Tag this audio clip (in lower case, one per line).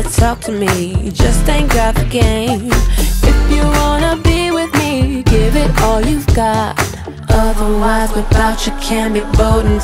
music